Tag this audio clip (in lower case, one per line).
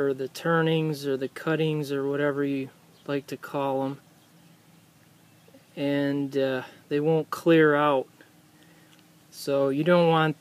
speech